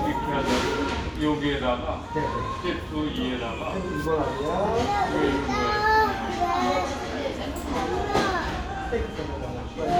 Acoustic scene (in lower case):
restaurant